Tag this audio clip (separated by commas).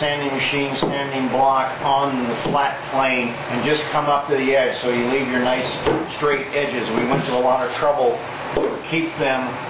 Speech